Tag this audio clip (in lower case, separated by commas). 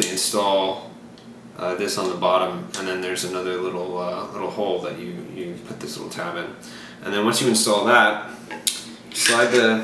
speech